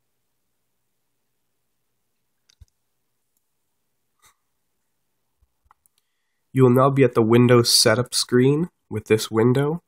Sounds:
Speech

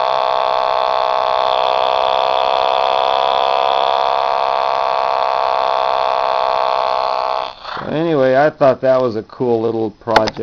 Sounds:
Speech

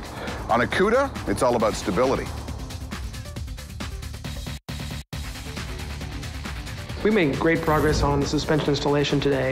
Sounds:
Music, Speech

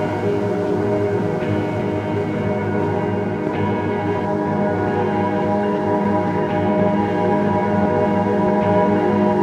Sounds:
Music, Ambient music

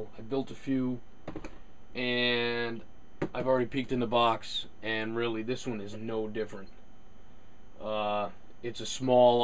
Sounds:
Speech

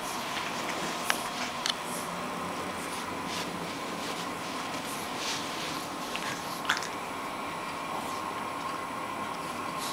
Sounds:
Animal, Dog

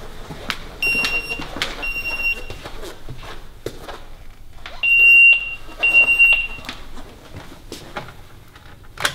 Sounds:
Smoke detector

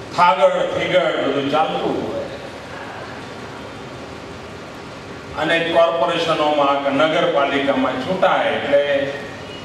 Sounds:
Male speech, Speech, monologue

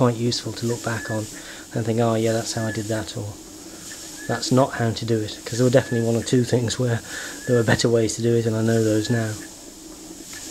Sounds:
Engine, Speech

